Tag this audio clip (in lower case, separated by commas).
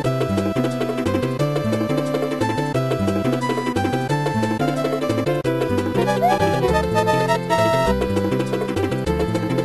music